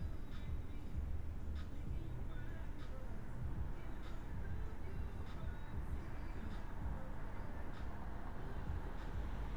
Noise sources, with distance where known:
medium-sounding engine
music from a moving source

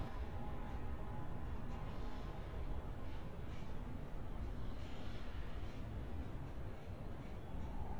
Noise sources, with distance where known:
medium-sounding engine

